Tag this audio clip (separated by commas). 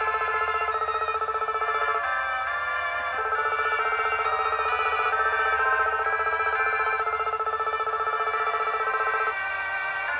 Music